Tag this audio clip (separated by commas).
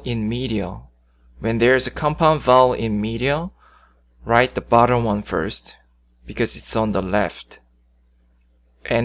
Speech